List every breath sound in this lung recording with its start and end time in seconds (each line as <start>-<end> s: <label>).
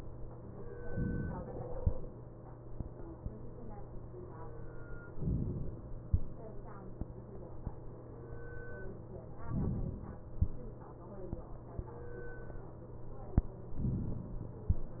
0.79-1.71 s: inhalation
5.14-6.06 s: inhalation
9.45-10.36 s: inhalation
13.78-14.70 s: inhalation